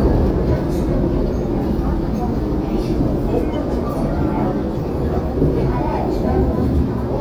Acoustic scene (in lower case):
subway train